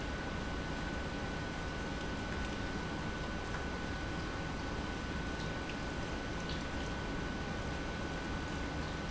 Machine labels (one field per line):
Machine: pump